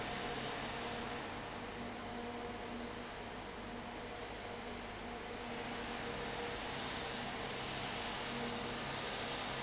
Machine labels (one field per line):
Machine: fan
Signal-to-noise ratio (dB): 0 dB